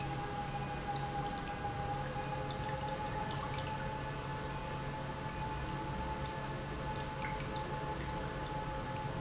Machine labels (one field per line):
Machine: pump